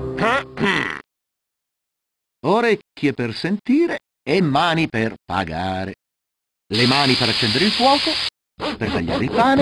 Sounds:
Speech

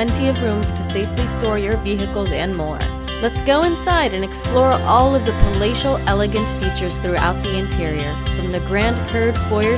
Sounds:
Music, Speech

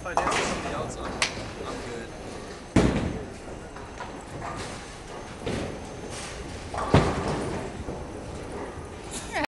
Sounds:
footsteps, Speech

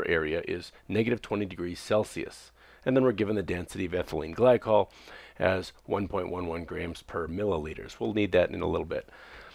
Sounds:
Speech

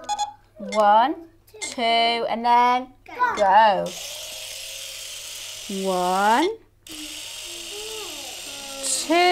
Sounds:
kid speaking

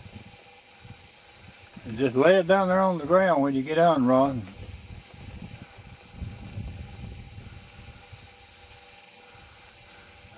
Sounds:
Speech

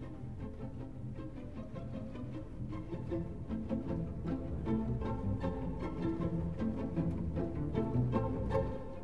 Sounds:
Violin, Musical instrument, Music

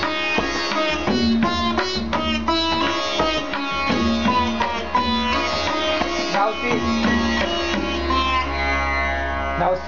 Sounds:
playing sitar

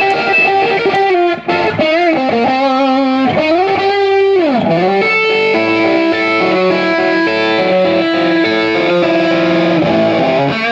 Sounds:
Music

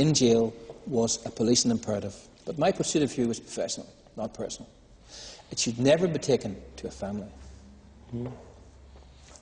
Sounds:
Speech

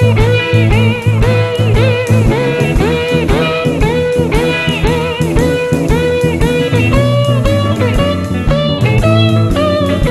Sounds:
Plucked string instrument, Musical instrument, Guitar, Acoustic guitar, Psychedelic rock, Music, Blues

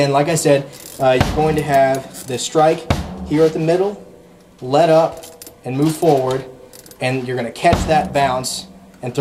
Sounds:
Music, Musical instrument, Drum, Speech, Bass drum, Snare drum

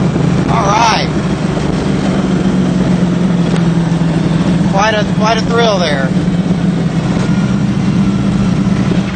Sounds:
Car, outside, urban or man-made, Vehicle, Speech

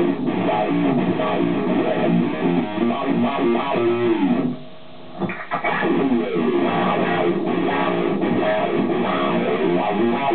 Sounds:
Music

